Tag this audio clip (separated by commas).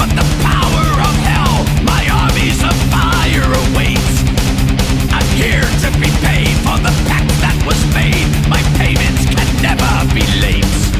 Music